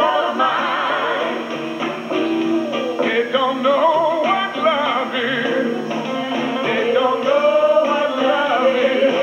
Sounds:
singing
inside a large room or hall
male singing
music

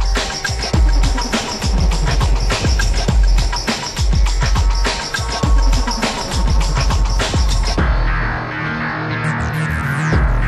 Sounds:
video game music
music

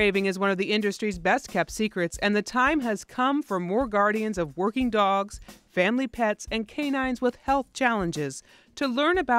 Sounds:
speech
music

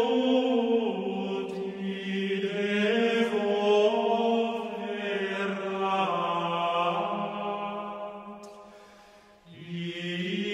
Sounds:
mantra

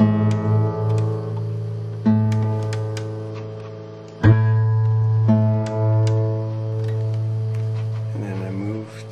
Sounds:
guitar
strum
speech
music
musical instrument

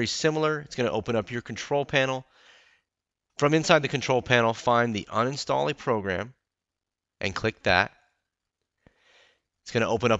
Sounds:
speech

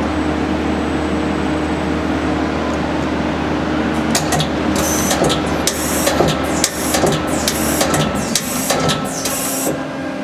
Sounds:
tools

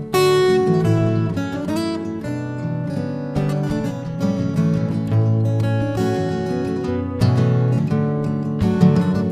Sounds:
music
guitar
musical instrument
strum
plucked string instrument
acoustic guitar

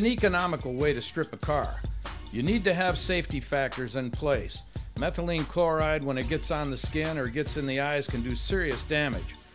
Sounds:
music
speech

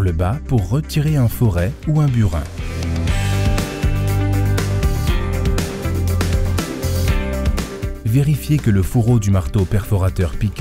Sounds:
music
speech

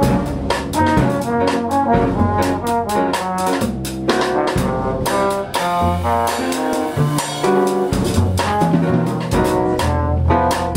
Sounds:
double bass
drum
percussion
jazz
bowed string instrument
music
musical instrument
drum kit

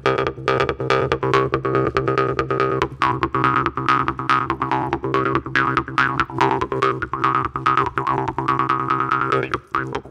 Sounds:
music
electronic music

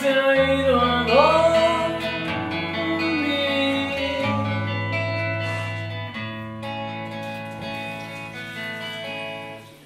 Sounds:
musical instrument
music
bass guitar
guitar

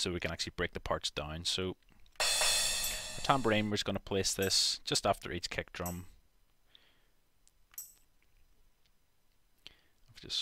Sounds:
speech
music

